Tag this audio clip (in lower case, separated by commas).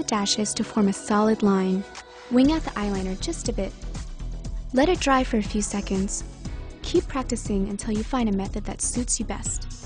music, speech